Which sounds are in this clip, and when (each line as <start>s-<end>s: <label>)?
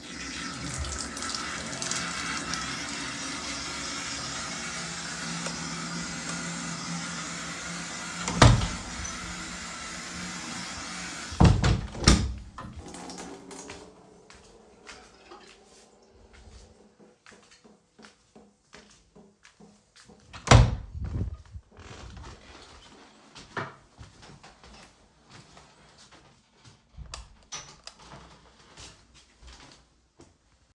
0.0s-20.4s: running water
5.1s-6.5s: light switch
8.1s-9.0s: door
11.2s-12.6s: door
13.6s-20.1s: footsteps
20.4s-21.5s: door
22.4s-30.7s: footsteps
27.0s-28.1s: light switch